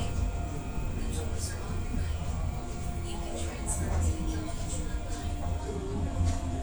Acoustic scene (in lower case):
subway train